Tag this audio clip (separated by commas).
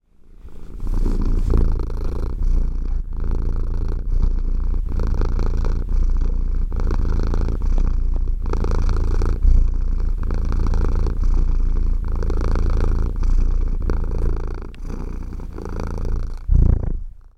Cat, Animal, Domestic animals, Purr